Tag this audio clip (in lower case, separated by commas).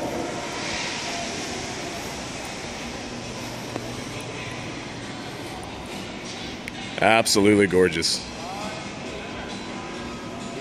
speech, music